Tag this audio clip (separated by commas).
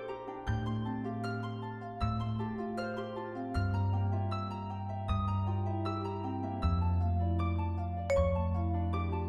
Glockenspiel, Marimba, Mallet percussion